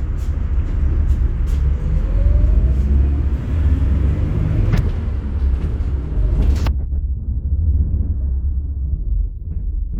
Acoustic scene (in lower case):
bus